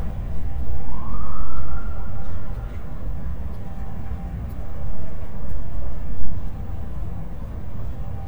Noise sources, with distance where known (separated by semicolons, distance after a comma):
siren, far